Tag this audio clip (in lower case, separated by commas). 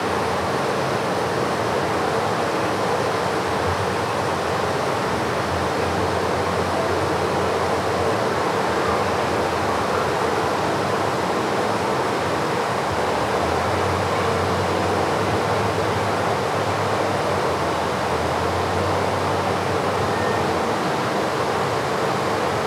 stream, water